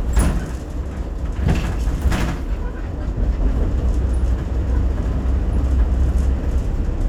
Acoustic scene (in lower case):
bus